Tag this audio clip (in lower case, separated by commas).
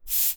bus, vehicle, motor vehicle (road)